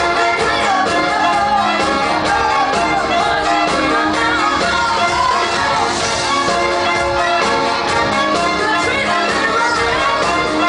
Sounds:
Music

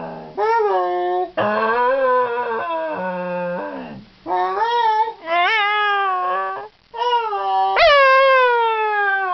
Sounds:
dog howling

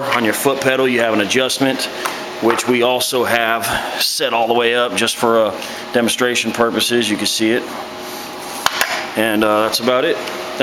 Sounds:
Speech, inside a large room or hall

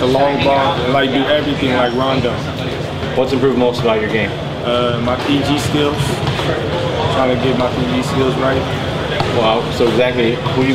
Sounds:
Speech

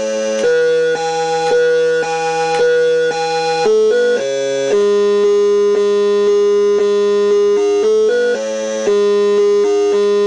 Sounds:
Music, inside a small room, Musical instrument

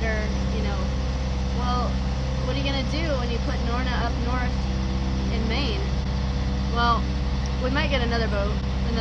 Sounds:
sailing ship, Speech

